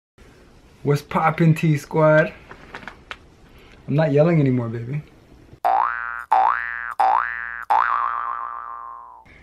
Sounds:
inside a small room
speech
boing

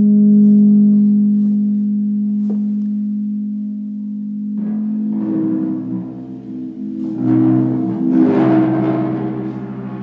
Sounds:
gong

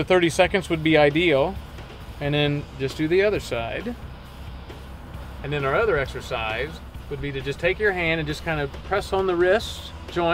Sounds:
speech
music

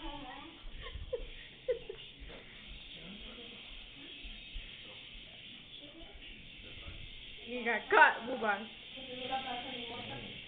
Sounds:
speech

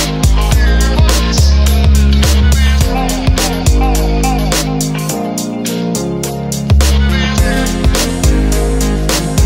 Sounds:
music

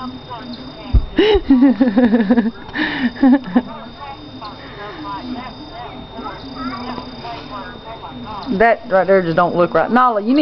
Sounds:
speech

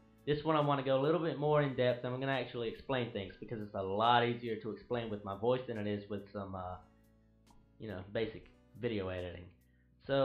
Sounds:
speech

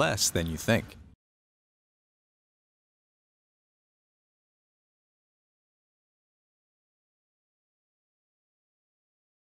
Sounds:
speech

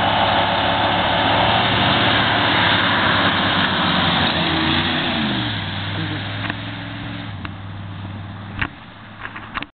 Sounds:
car
vehicle

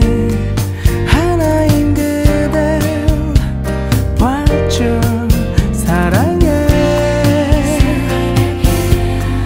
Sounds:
music

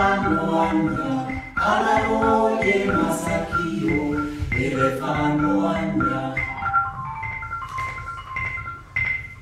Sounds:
music
ding

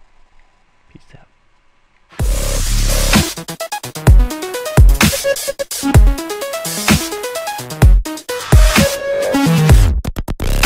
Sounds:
dubstep

